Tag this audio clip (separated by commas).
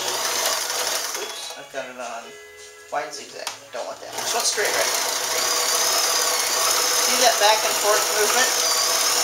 Sewing machine, Music, Speech